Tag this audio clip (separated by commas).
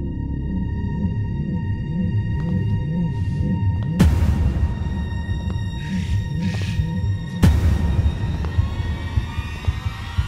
Music